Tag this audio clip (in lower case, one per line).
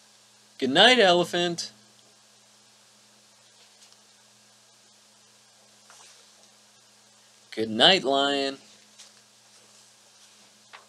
speech
monologue